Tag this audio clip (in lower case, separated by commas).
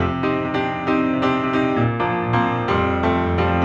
music, keyboard (musical), piano, musical instrument